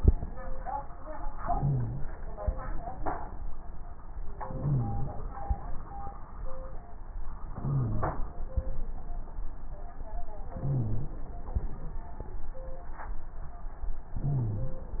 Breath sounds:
1.37-2.18 s: inhalation
1.50-2.05 s: wheeze
4.42-5.21 s: inhalation
4.58-5.13 s: wheeze
7.53-8.32 s: inhalation
7.66-8.19 s: wheeze
10.57-11.27 s: inhalation
10.61-11.14 s: wheeze
14.20-14.94 s: inhalation
14.27-14.83 s: wheeze

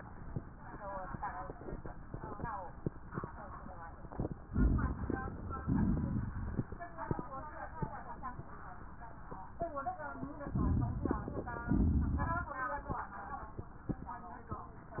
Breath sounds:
4.46-5.58 s: inhalation
4.46-5.58 s: crackles
5.64-6.74 s: exhalation
5.64-6.74 s: crackles
10.53-11.63 s: inhalation
10.53-11.63 s: crackles
11.65-12.60 s: exhalation
11.65-12.60 s: crackles

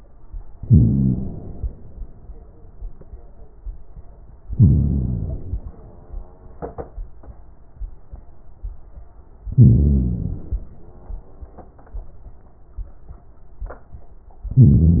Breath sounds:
0.57-1.71 s: inhalation
0.59-1.75 s: crackles
4.50-5.64 s: inhalation
4.50-5.67 s: crackles
9.50-10.67 s: crackles
9.54-10.68 s: inhalation
14.54-15.00 s: inhalation
14.54-15.00 s: crackles

